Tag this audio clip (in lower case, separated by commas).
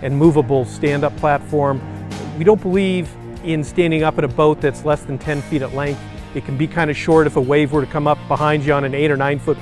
music, speech